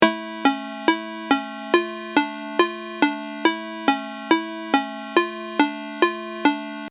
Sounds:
telephone
alarm
ringtone

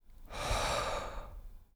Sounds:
respiratory sounds
breathing

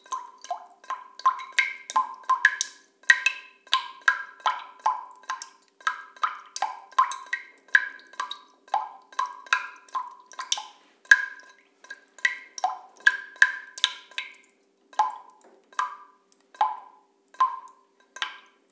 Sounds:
rain
drip
liquid
water

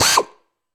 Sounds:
drill
tools
power tool

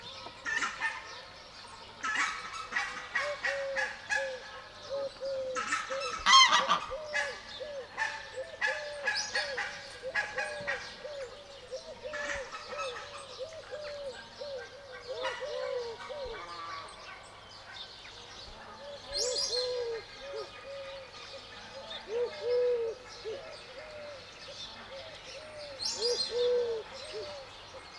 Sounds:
fowl
livestock
animal

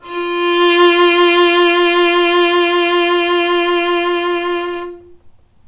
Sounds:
musical instrument
bowed string instrument
music

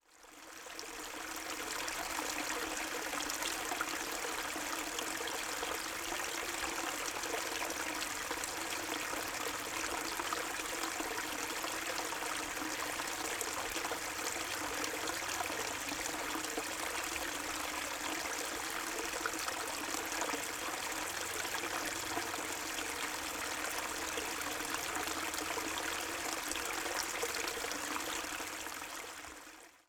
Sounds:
stream
water

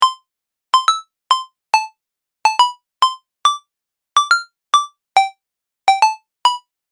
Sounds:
alarm
telephone
ringtone

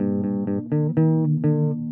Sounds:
bass guitar
plucked string instrument
musical instrument
music
guitar

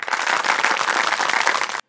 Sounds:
applause
human group actions

